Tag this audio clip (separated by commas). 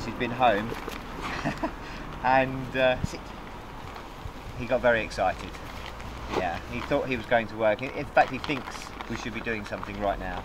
Speech